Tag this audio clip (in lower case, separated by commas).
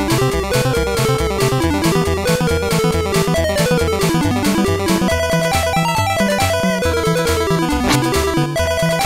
soundtrack music, music